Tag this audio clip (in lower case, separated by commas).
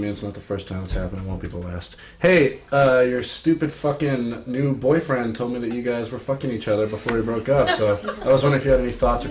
speech